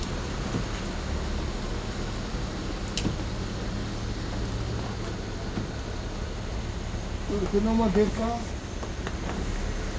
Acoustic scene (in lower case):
street